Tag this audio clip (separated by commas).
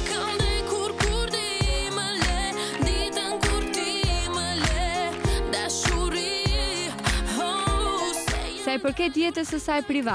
Speech, Music